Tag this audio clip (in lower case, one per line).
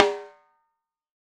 snare drum
music
percussion
musical instrument
drum